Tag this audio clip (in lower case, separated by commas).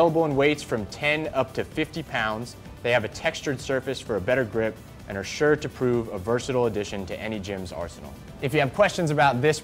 music, speech